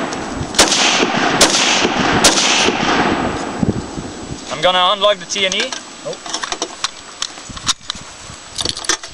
Gunfire and blasts are occurring, an adult male speaks, and clicking occurs